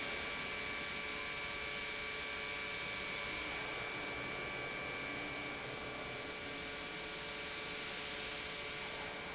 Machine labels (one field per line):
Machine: pump